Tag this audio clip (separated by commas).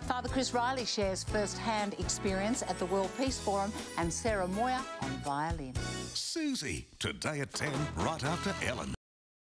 Speech, Music